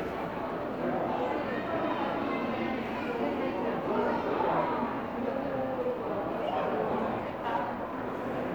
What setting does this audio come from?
crowded indoor space